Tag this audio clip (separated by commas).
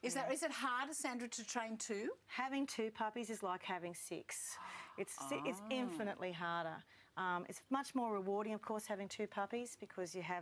Speech